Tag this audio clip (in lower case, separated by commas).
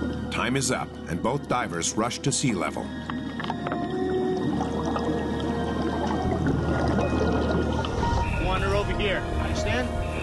music, speech, outside, rural or natural